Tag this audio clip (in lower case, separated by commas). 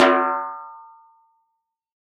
music, musical instrument, drum, snare drum, percussion